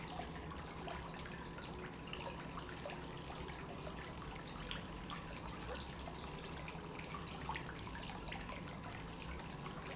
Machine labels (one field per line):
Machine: pump